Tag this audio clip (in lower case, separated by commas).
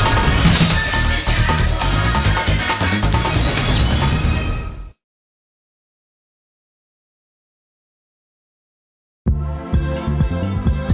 music